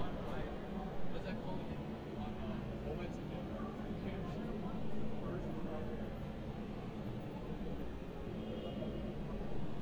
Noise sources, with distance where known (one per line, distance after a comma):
person or small group talking, far